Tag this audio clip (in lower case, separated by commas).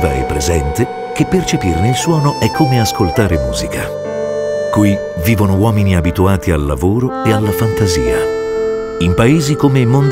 music, speech